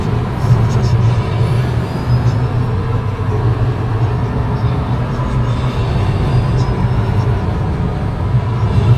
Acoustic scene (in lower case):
car